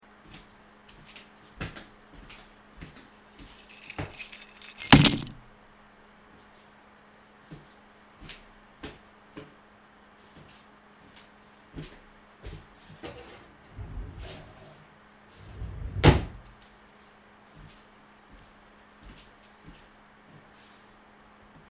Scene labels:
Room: office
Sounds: footsteps, keys, wardrobe or drawer (more than once)

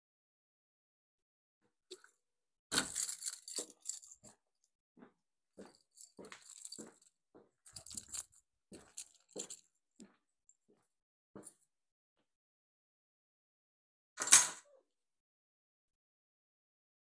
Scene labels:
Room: hallway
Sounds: keys, footsteps

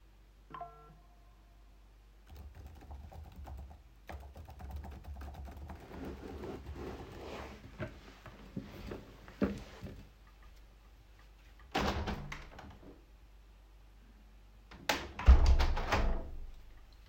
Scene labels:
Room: living room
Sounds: phone ringing, keyboard typing, window (more than once)

